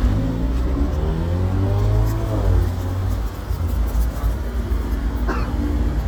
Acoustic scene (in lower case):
street